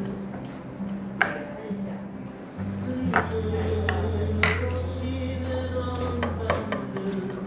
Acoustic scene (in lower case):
restaurant